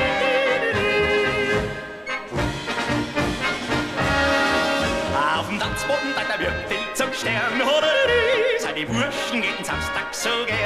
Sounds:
yodelling

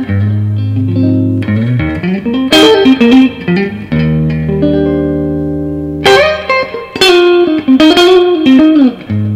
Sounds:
Music

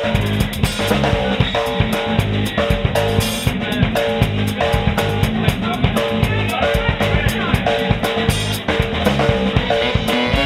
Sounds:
Speech, Psychedelic rock, Music, Ska

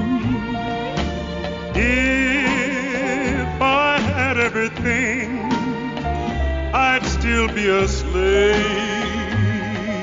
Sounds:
Music

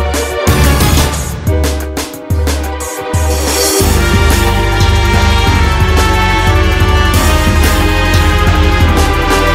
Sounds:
Video game music

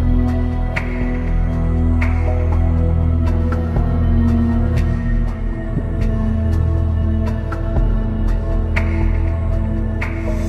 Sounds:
Music

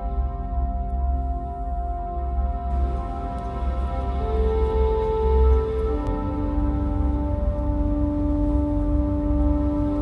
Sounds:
Music

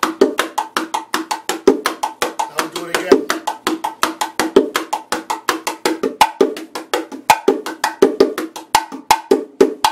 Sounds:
playing bongo

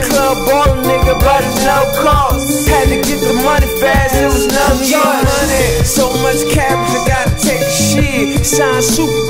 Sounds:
Music

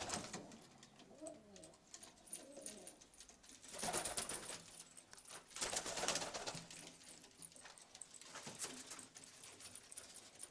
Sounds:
Pigeon, Bird

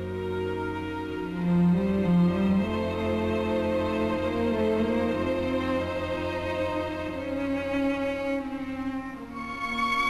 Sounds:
Cello, Music

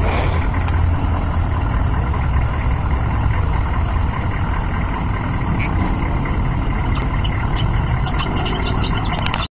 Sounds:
Vehicle

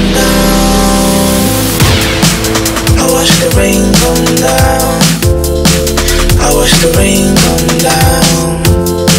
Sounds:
Hip hop music, Drum and bass, Music

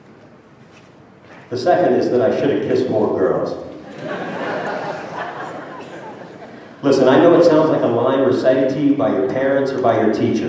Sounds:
Male speech, Speech

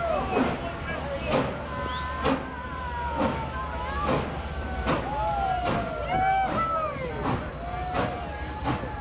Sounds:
Speech

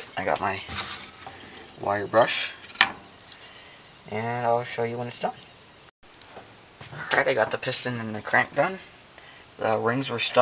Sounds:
Speech

